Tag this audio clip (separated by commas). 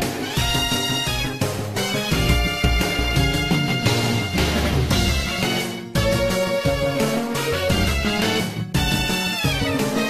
Soundtrack music, Video game music, Music